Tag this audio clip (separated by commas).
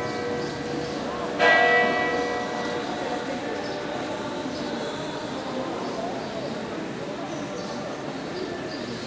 Speech